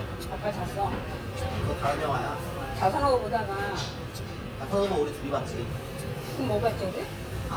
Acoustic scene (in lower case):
restaurant